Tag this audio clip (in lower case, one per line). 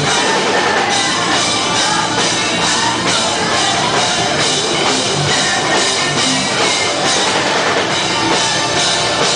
music